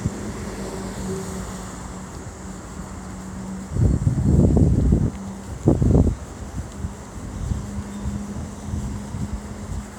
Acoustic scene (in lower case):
street